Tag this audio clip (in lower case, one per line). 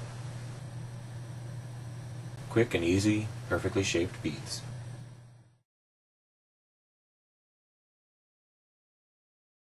speech